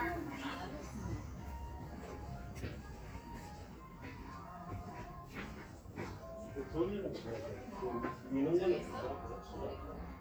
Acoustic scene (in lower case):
crowded indoor space